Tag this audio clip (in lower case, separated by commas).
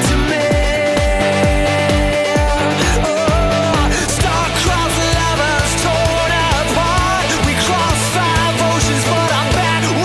music